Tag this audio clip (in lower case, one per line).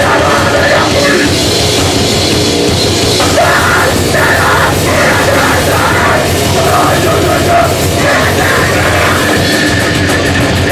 music